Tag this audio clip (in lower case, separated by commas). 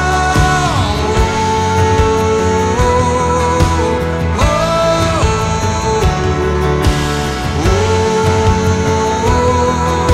child singing